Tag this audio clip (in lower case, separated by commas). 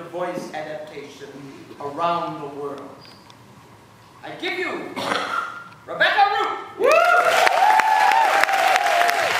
speech, narration